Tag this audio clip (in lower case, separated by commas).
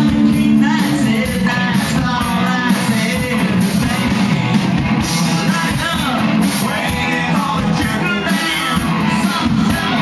guitar, singing, music, rock music